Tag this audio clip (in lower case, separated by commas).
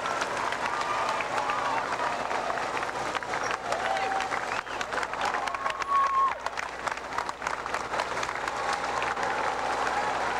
speech, run, people running